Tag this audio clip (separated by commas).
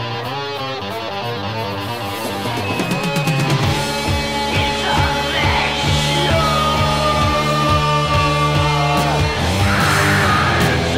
Music, Rock music